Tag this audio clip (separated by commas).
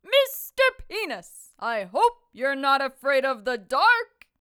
Human voice, Female speech, Speech